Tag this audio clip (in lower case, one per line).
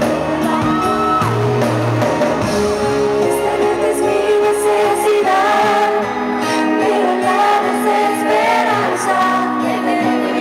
music